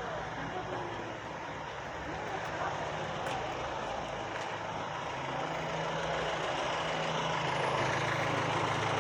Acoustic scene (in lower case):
residential area